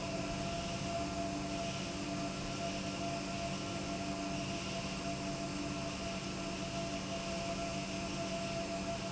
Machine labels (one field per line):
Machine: pump